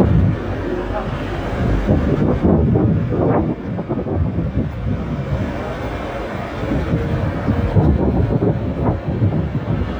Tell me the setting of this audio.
street